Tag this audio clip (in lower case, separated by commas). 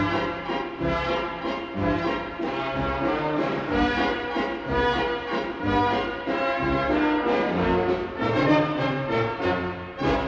music